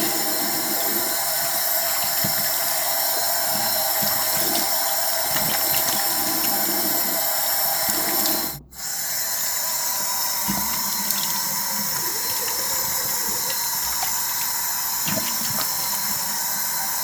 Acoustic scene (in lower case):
restroom